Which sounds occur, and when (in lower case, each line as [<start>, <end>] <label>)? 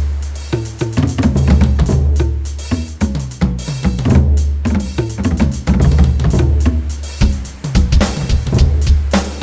[0.00, 9.42] music
[0.00, 9.42] surf